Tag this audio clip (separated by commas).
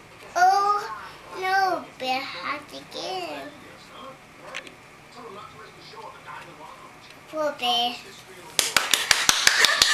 Speech, kid speaking